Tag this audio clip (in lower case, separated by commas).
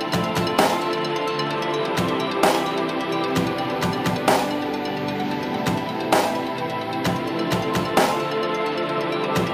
music